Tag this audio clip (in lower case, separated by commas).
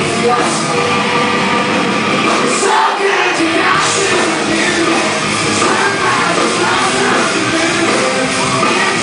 singing, music